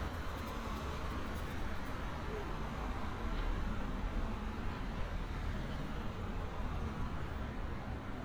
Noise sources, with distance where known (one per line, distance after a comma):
engine of unclear size, far